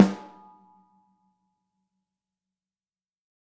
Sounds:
Musical instrument, Drum, Music, Percussion

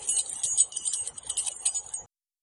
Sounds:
Keys jangling, Domestic sounds

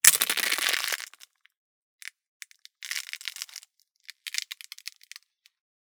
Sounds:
Crushing

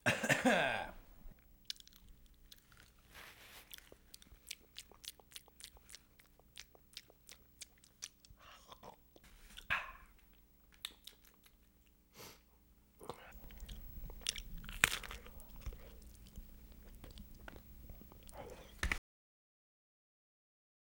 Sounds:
Chewing, Respiratory sounds, Cough

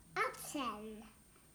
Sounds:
kid speaking, Speech, Human voice

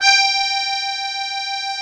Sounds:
Music, Musical instrument, Accordion

